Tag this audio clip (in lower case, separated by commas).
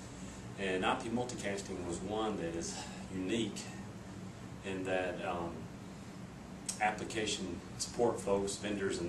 speech